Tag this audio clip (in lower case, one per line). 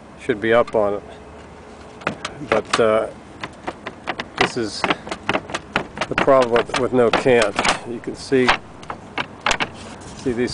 speech
outside, urban or man-made